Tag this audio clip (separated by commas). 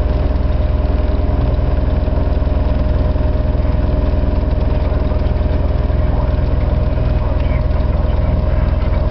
Vehicle, Speech, Idling